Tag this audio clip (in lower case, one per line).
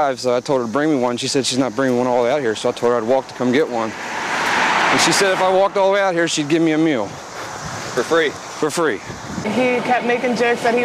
speech
footsteps